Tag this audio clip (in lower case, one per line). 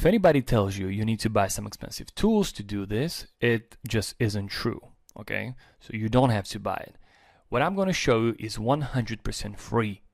speech